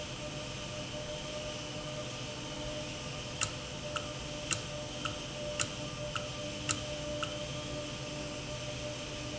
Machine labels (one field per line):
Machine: valve